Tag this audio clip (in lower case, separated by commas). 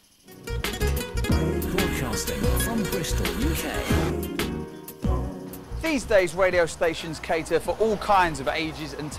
music, speech